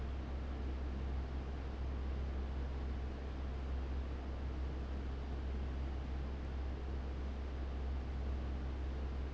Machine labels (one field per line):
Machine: fan